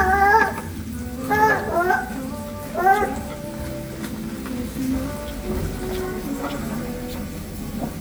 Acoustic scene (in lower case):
restaurant